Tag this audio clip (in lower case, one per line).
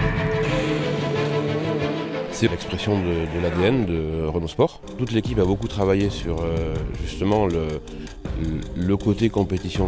car passing by